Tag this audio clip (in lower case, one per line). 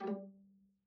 music
musical instrument
bowed string instrument